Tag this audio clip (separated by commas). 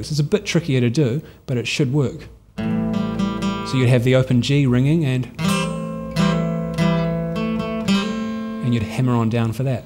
Guitar, Electric guitar, Musical instrument, Music, Speech